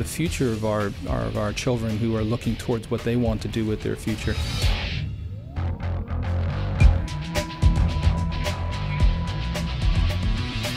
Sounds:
Music, Speech

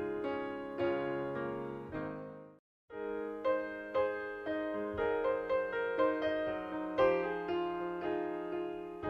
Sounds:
Piano, Music

